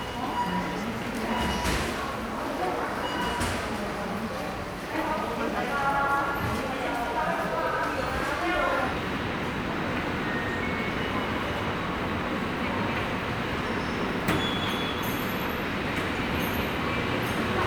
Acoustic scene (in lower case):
subway station